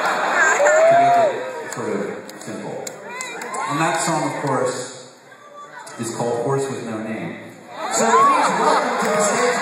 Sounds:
speech

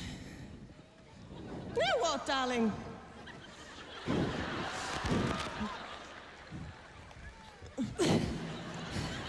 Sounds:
speech

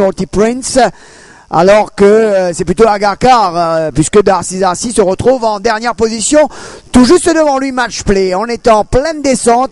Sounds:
speech

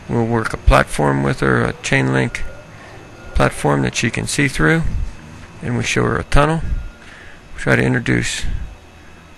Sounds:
speech

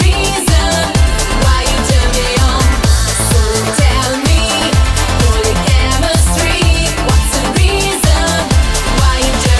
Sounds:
music

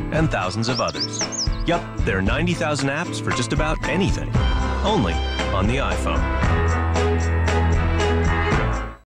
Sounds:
speech
music

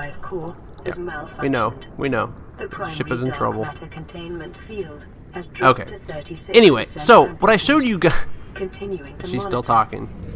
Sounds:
speech

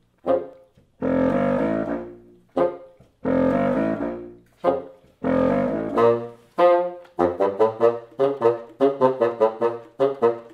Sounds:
playing bassoon

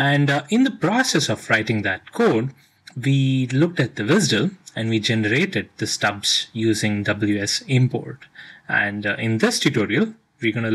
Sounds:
speech

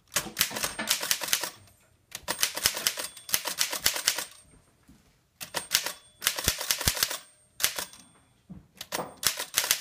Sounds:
typewriter

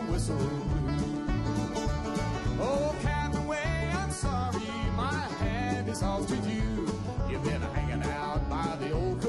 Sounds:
music

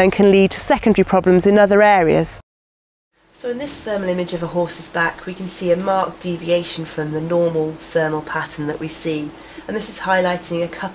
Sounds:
speech

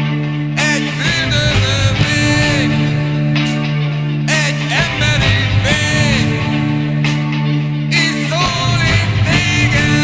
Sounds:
music

